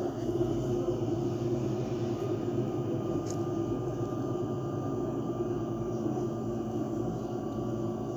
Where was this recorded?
on a bus